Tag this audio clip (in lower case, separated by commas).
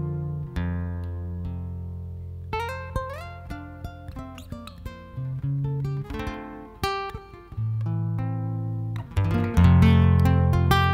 music, acoustic guitar